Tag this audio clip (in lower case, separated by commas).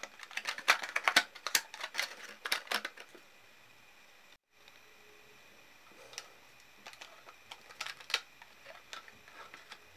plastic bottle crushing